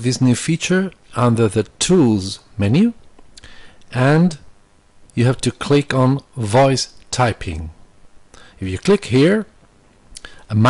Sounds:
Speech synthesizer, Narration, Speech

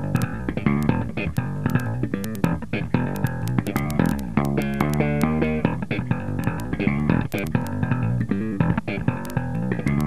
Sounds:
Tapping (guitar technique), Bass guitar, Musical instrument, Steel guitar, Plucked string instrument, Electric guitar, Music

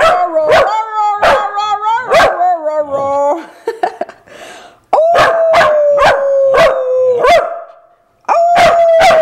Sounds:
Bow-wow, dog bow-wow

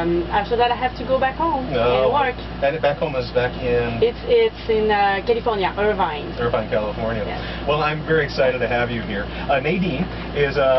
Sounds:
Speech

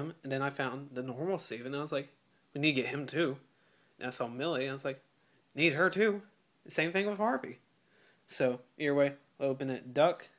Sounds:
Speech

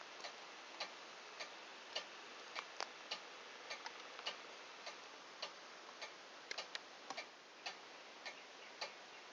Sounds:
Tick-tock

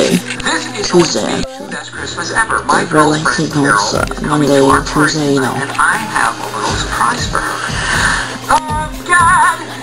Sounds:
Music, Speech

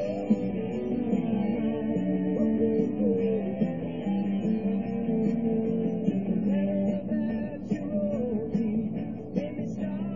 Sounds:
Music

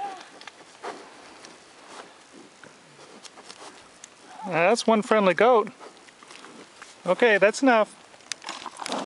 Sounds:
Speech

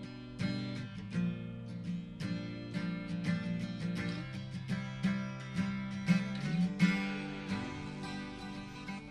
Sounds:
Plucked string instrument, Strum, Guitar, Music, Acoustic guitar, Musical instrument

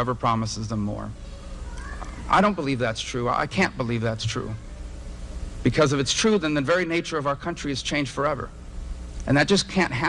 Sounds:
Speech, Male speech, monologue

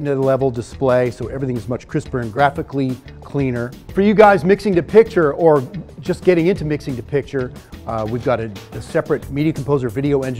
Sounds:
Speech, Music

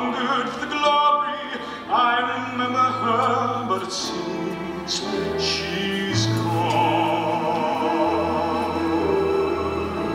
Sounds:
Opera

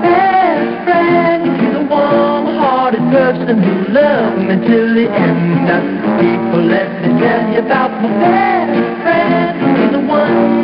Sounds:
Music

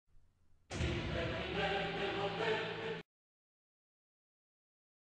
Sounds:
Music

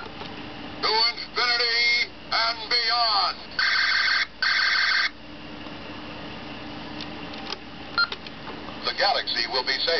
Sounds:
Speech

